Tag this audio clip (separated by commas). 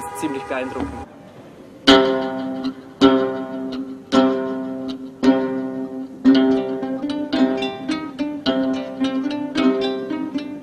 Pizzicato